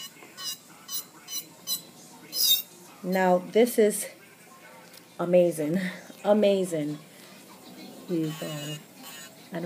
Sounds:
Speech

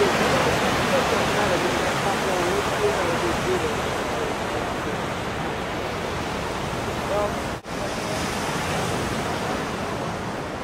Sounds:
Waves, Ocean, Speech, ocean burbling, outside, rural or natural

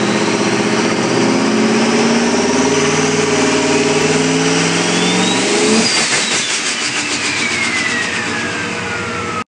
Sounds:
Vehicle

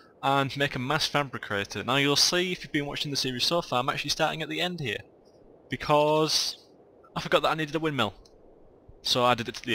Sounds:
Speech

